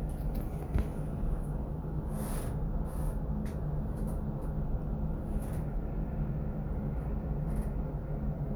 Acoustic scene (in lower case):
elevator